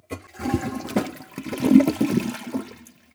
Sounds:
domestic sounds
toilet flush

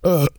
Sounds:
eructation

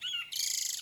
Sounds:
bird
wild animals
animal

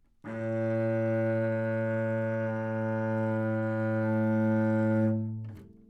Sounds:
musical instrument
music
bowed string instrument

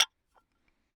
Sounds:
tap
glass

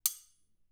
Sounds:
domestic sounds
silverware

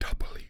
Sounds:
human voice
whispering

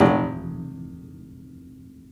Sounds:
keyboard (musical)
music
piano
musical instrument

